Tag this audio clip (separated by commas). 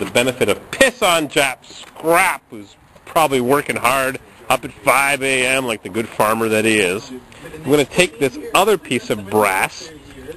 Speech